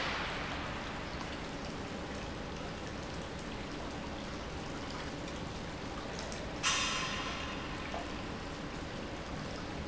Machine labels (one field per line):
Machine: pump